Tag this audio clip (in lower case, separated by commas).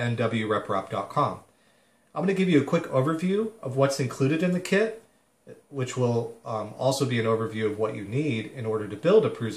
speech